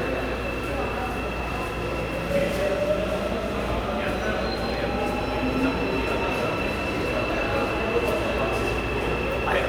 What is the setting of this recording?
subway station